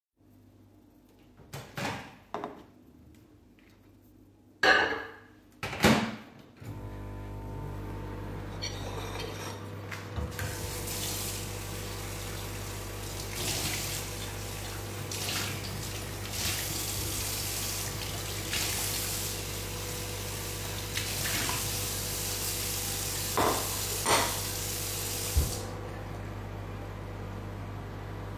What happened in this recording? I started a microwave and then opened a tap while the microwave is still on